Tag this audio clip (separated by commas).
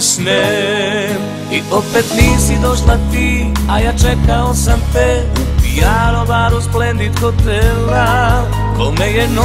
Music, Sad music